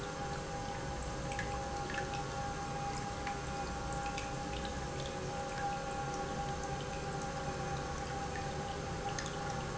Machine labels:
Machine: pump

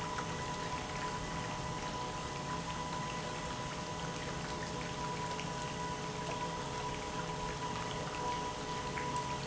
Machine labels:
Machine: pump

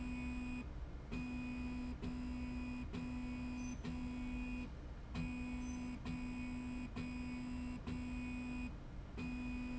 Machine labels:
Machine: slide rail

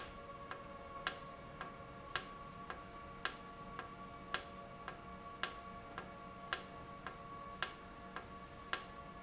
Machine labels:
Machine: valve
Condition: normal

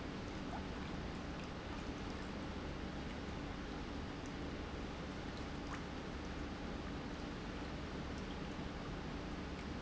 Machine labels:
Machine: pump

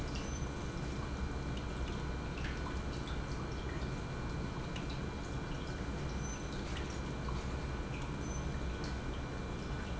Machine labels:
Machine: pump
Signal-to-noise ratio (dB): -6 dB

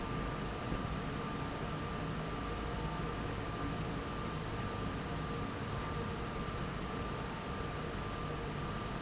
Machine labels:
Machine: fan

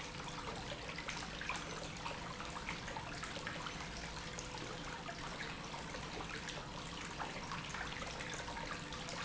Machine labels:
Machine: pump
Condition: normal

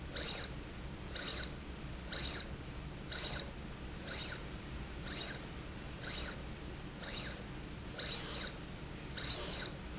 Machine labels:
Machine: slide rail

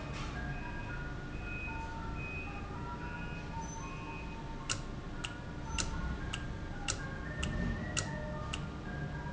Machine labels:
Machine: valve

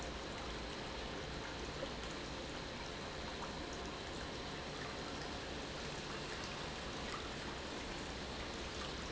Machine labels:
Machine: pump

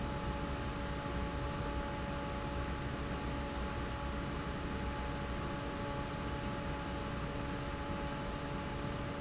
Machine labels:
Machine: fan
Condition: normal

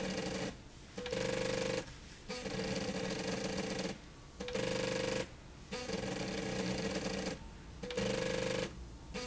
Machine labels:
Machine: slide rail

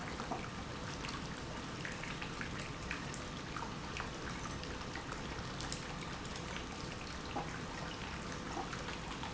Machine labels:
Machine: pump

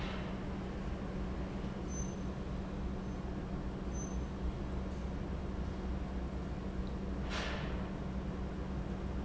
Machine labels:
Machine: pump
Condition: normal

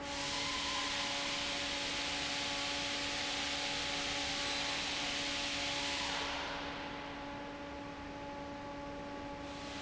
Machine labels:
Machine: fan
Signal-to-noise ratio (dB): -6 dB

